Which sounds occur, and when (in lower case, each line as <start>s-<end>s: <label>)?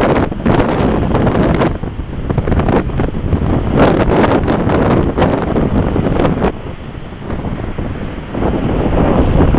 0.0s-9.5s: surf
0.0s-9.5s: wind noise (microphone)